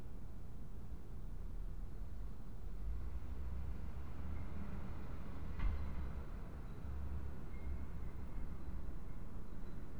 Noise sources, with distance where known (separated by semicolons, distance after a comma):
background noise